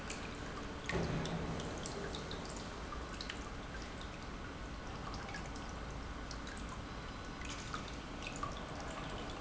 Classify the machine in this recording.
pump